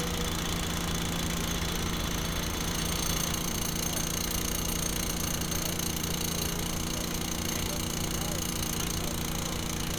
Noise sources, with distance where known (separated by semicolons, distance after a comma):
jackhammer, near